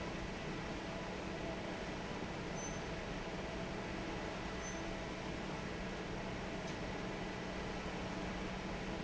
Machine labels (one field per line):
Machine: fan